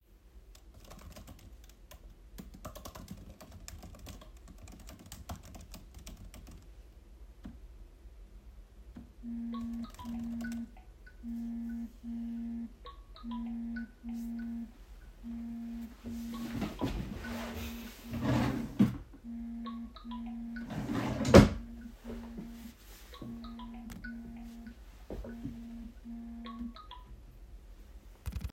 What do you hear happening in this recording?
I was typing on my keyboard, then my phone rang. I also need to take a pen from my drawer. So I reached out to my drawer, opened it, picked the pen and closed it